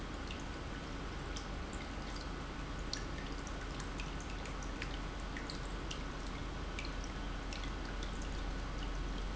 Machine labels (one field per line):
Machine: pump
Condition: normal